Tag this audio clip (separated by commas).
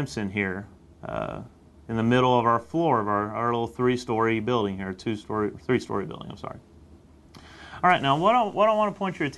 Speech